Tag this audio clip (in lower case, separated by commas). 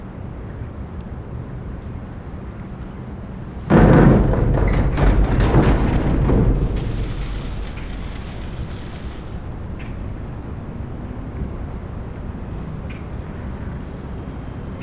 bicycle, vehicle